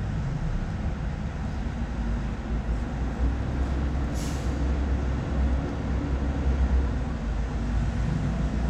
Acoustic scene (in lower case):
residential area